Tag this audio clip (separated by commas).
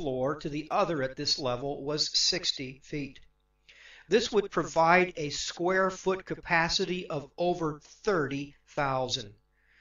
Speech